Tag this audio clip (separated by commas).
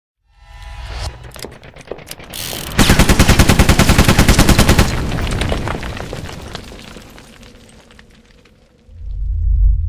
Boom